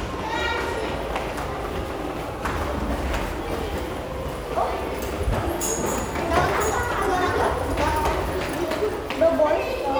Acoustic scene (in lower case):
crowded indoor space